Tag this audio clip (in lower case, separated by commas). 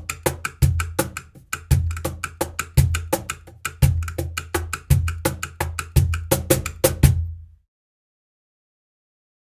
music